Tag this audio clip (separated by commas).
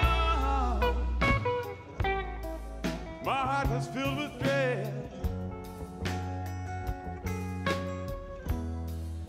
Music